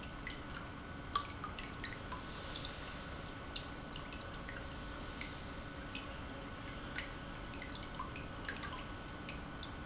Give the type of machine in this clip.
pump